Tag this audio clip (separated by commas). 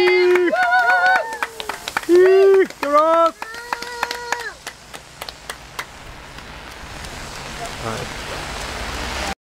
Speech, Rain on surface